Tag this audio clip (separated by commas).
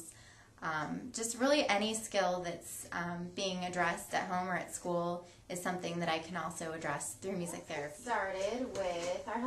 Speech